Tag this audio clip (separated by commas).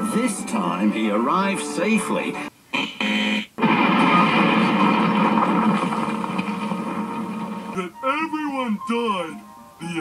Speech, Music